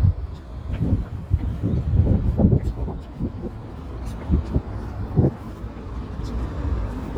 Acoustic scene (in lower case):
residential area